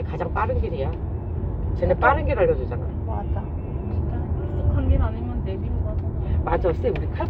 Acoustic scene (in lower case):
car